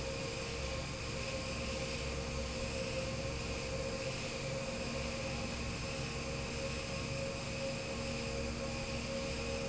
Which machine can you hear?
fan